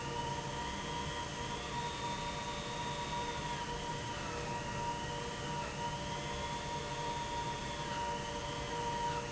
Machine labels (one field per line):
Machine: pump